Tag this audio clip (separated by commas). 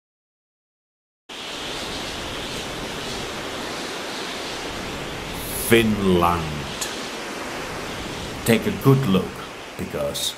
Speech, outside, rural or natural